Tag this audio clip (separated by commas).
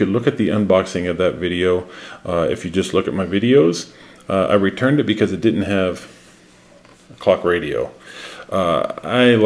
Speech